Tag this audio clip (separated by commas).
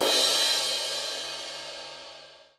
Crash cymbal, Percussion, Musical instrument, Cymbal, Music